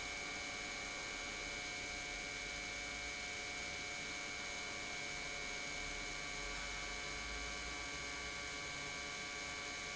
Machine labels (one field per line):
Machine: pump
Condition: normal